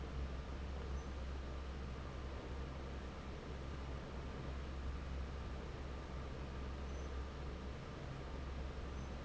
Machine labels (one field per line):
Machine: fan